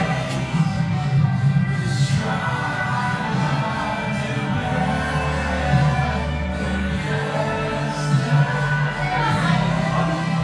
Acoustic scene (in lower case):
cafe